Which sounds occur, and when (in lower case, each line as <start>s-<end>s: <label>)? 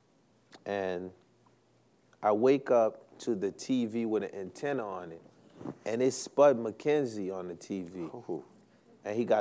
0.0s-9.4s: background noise
0.5s-1.1s: male speech
2.1s-2.9s: male speech
3.2s-5.2s: male speech
5.3s-5.8s: breathing
5.8s-8.4s: male speech
8.7s-9.1s: breathing